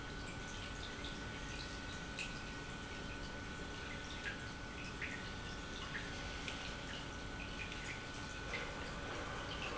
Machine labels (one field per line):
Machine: pump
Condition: normal